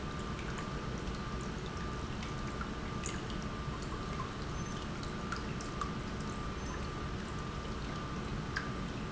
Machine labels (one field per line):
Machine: pump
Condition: normal